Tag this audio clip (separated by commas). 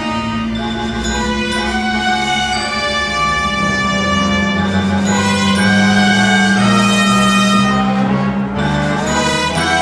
Music, Orchestra